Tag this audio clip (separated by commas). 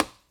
Tap